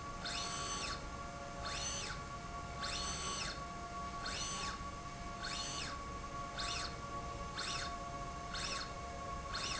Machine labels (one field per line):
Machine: slide rail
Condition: normal